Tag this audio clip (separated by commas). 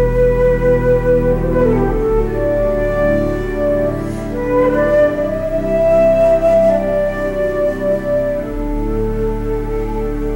Music, playing flute, Flute